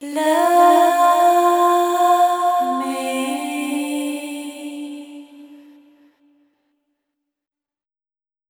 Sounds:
singing
female singing
human voice

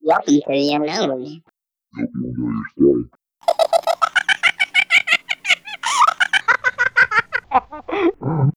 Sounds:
laughter
human voice

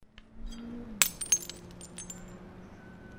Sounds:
glass
shatter
crushing

